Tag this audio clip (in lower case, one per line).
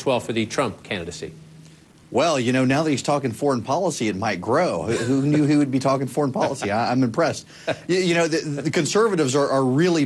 speech